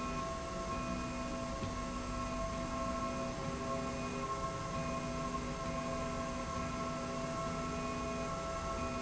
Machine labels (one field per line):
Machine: slide rail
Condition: normal